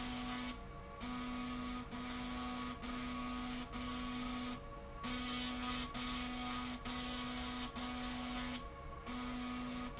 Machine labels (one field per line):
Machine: slide rail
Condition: abnormal